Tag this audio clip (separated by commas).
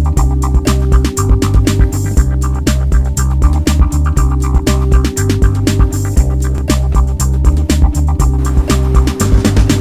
Music